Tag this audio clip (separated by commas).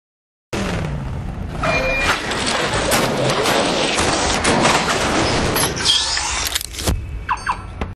Vehicle, Motor vehicle (road)